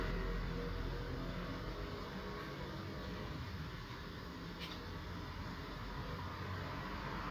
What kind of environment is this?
street